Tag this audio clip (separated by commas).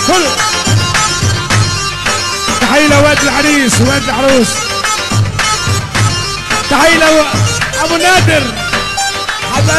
Music, Speech